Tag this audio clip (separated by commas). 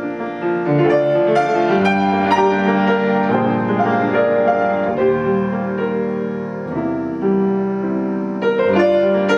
Music